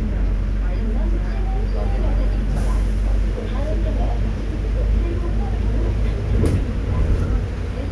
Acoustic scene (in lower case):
bus